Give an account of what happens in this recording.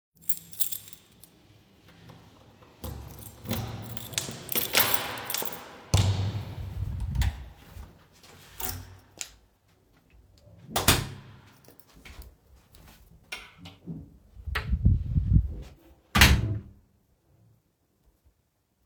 I took the key, opened the door and then closed the wardrobe